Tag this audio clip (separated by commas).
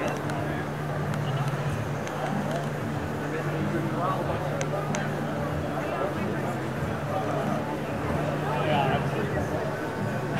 Speech